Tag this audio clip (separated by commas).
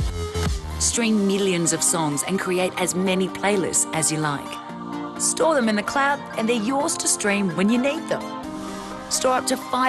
Speech, Music